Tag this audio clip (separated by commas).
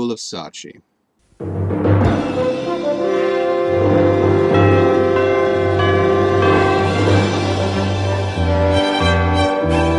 Timpani